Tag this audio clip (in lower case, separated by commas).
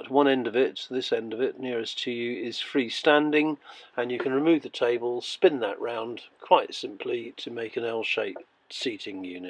speech